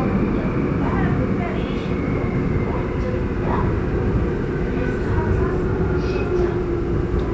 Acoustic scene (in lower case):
subway train